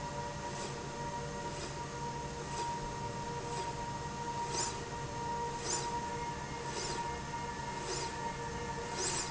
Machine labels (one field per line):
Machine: slide rail